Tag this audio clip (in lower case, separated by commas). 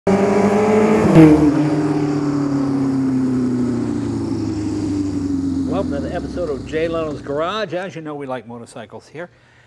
motorcycle, vehicle